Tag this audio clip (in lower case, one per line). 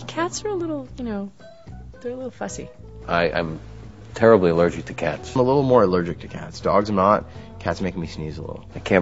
music
speech